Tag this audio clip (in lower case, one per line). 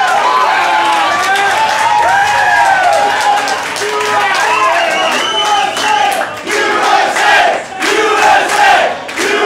inside a large room or hall
speech